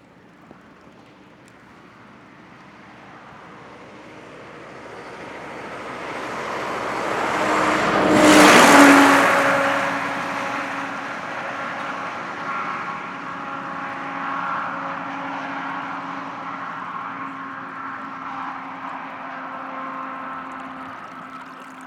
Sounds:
motor vehicle (road)
vehicle
truck

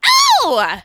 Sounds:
human voice

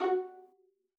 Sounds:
music
musical instrument
bowed string instrument

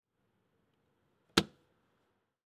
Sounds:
vehicle
motor vehicle (road)
car

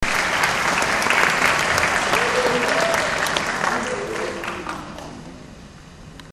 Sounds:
crowd
human group actions
applause

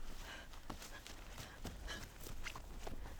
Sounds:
respiratory sounds
breathing
run

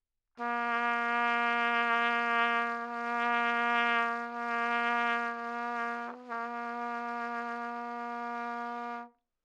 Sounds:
music
musical instrument
trumpet
brass instrument

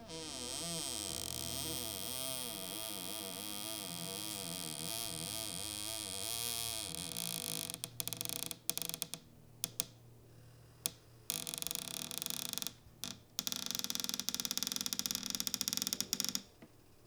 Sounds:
domestic sounds
cupboard open or close

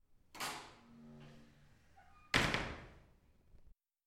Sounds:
slam
domestic sounds
door

